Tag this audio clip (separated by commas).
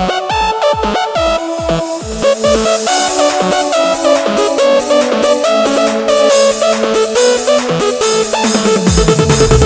Music, Techno